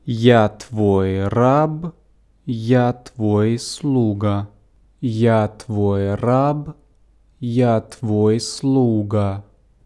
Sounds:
Human voice, man speaking, Speech

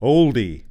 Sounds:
Human voice, Male speech, Speech

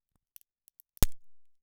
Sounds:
Crack

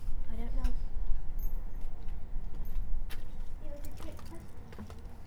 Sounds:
Human voice, Speech, Child speech

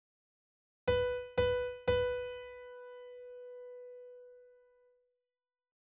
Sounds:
Music, Piano, Musical instrument, Keyboard (musical)

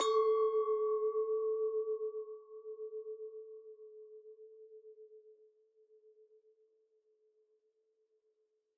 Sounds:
Glass, clink

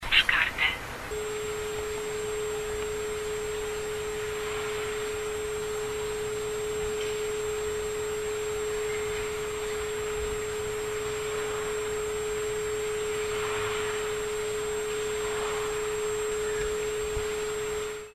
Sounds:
Telephone, Alarm

